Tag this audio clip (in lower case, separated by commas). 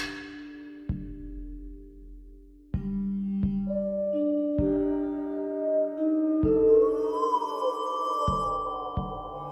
music